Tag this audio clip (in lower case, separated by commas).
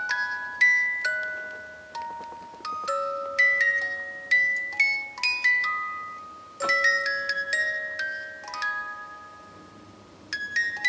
music